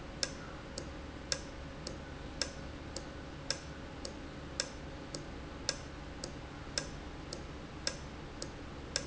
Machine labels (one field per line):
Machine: valve